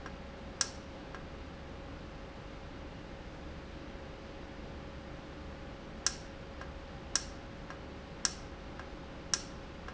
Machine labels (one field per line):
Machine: valve